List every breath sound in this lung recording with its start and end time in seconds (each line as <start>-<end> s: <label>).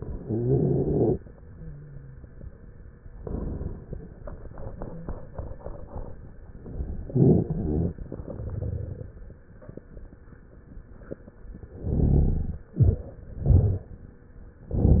0.21-1.10 s: inhalation
0.24-1.21 s: rhonchi
1.39-2.53 s: wheeze
3.15-3.98 s: inhalation
7.07-7.93 s: inhalation
7.11-7.97 s: rhonchi
8.00-9.37 s: exhalation
8.00-9.37 s: crackles
11.75-12.61 s: inhalation
11.75-12.61 s: rhonchi